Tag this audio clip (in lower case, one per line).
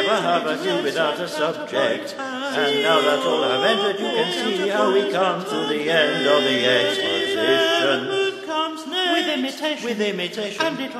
choir
chant